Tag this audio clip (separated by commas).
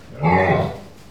Animal, livestock